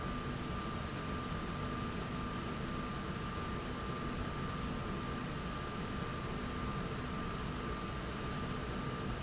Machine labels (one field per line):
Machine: slide rail